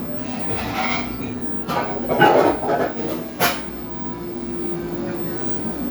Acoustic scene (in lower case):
cafe